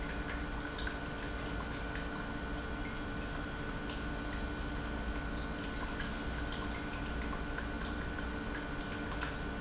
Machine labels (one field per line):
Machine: pump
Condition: normal